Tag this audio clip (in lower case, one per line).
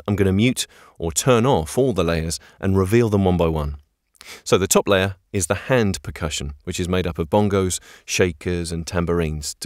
speech